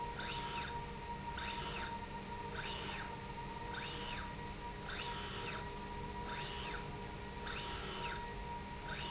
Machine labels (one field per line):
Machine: slide rail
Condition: normal